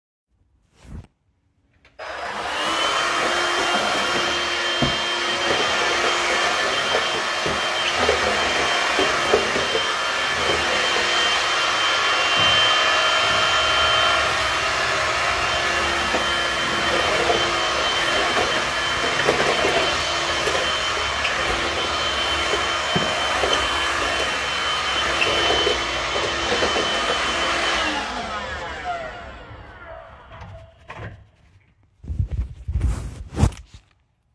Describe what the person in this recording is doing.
I used the vacuum cleaner, then closed a window